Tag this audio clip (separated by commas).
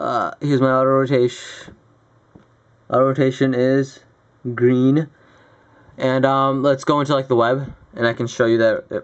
Speech